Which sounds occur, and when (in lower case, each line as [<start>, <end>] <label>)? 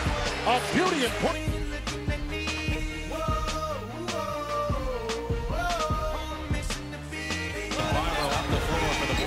[0.00, 9.25] male singing
[0.00, 9.25] music
[0.35, 1.36] man speaking
[7.67, 9.25] man speaking
[7.68, 9.25] crowd